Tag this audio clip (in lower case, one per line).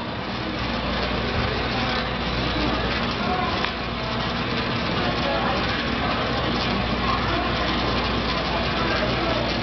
speech